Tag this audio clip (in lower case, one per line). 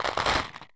rattle